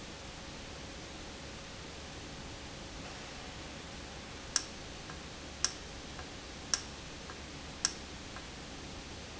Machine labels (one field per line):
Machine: valve